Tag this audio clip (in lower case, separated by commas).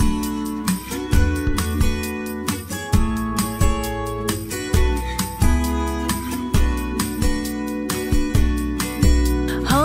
happy music, music